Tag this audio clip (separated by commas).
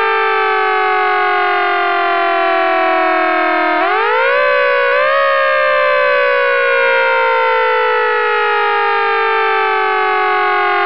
Fire engine, Siren